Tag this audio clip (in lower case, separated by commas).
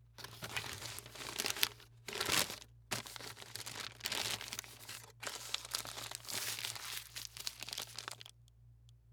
crumpling